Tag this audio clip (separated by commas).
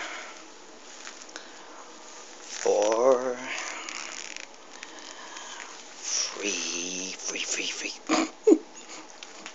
inside a small room, Speech